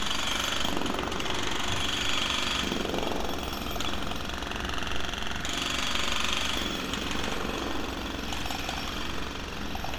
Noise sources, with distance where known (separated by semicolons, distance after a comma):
jackhammer, near